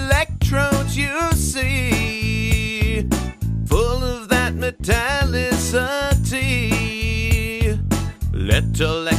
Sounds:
Background music, Music

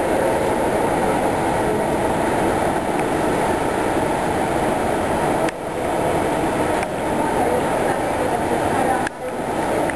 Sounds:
Speech

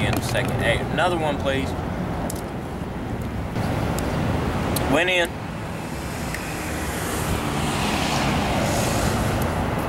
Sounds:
Traffic noise

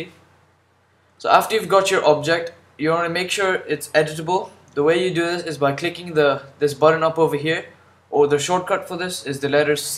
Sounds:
Speech

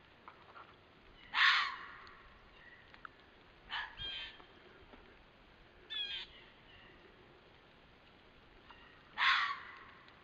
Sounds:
fox barking

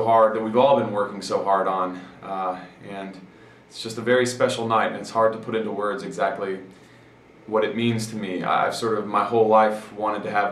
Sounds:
Speech

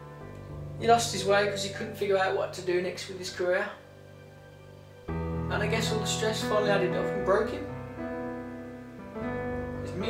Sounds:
Speech, Music, Narration

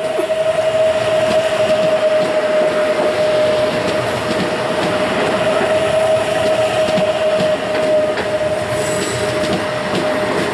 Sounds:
Rail transport, train wagon, Train, Clickety-clack

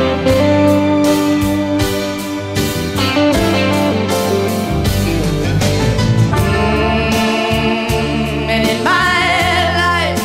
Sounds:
Pop music, inside a public space, Singing, Music, slide guitar

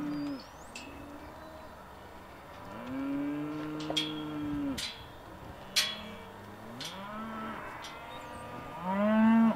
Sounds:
cattle mooing, livestock, Moo, bovinae

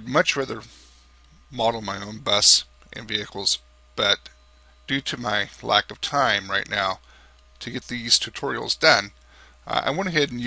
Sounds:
Speech

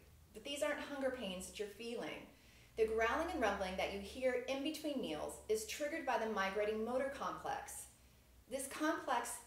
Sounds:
Speech

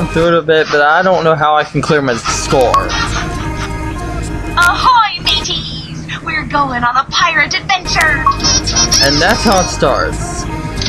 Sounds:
Music, Speech

